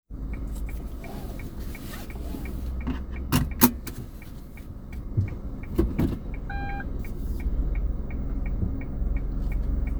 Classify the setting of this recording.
car